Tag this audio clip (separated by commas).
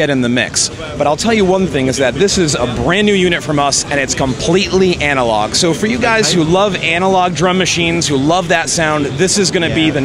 Speech